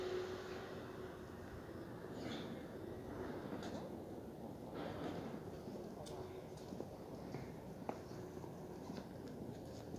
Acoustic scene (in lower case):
residential area